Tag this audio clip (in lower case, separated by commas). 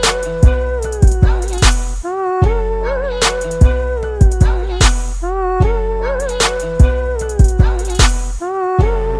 music